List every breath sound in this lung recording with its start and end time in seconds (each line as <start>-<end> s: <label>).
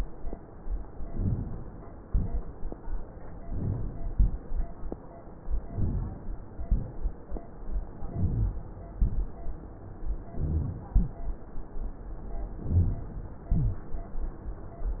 1.06-1.67 s: inhalation
2.03-2.64 s: exhalation
3.46-4.06 s: inhalation
4.12-4.73 s: exhalation
5.70-6.31 s: inhalation
6.63-7.12 s: exhalation
8.00-8.59 s: inhalation
10.32-10.92 s: inhalation
12.69-13.07 s: inhalation
13.53-13.91 s: exhalation